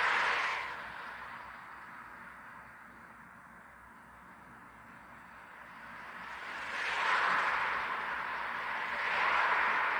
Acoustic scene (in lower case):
street